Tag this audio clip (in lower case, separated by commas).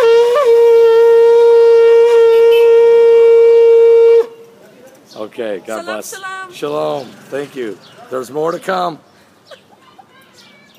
woodwind instrument, shofar